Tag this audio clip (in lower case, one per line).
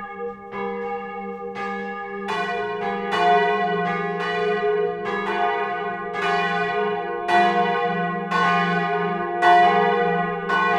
church bell ringing